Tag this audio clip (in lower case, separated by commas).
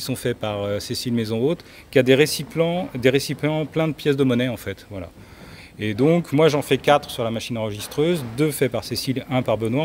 speech